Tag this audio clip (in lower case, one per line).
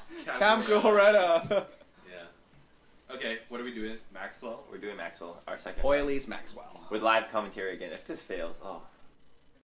speech